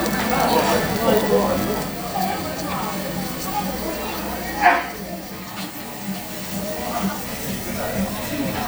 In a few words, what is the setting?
restaurant